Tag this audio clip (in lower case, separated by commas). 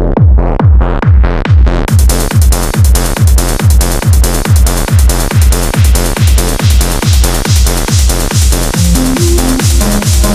electronic music, music, techno, trance music